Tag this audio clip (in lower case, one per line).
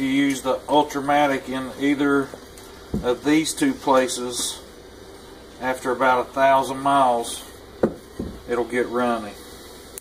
inside a small room
speech